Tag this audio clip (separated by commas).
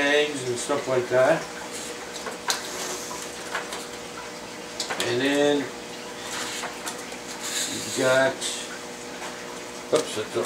Speech, inside a small room